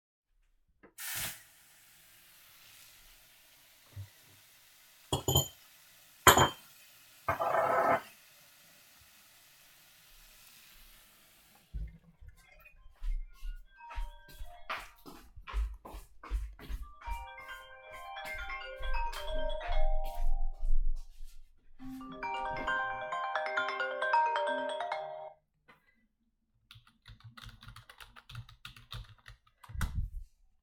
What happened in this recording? I turned on the water, moved water glasses, turned of water, went to the living room, turned of the phone and finished with typing.